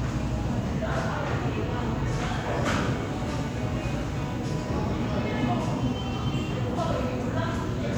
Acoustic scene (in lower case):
cafe